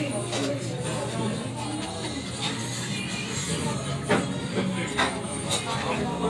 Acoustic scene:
crowded indoor space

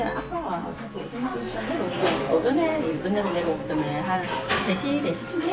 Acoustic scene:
crowded indoor space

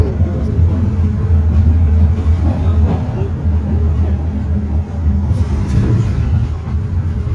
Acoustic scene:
bus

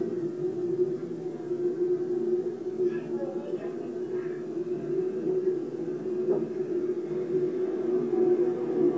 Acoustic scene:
subway train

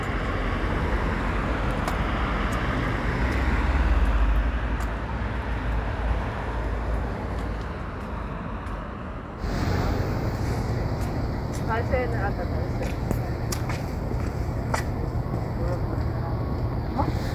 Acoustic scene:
street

